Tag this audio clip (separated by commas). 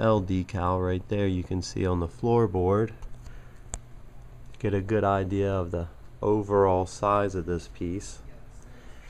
Speech